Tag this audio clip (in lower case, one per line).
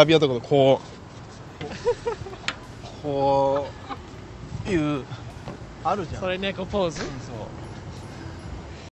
speech